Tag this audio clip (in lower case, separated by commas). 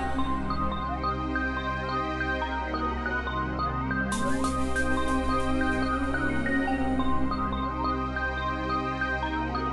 music, electronic music, dubstep